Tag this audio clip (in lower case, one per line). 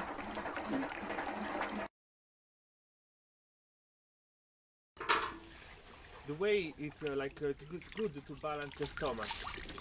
speech
liquid